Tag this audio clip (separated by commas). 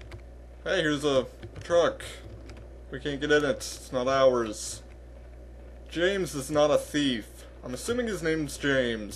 Speech